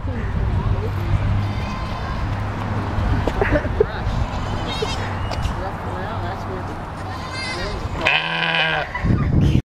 A sheep bleats and people are talking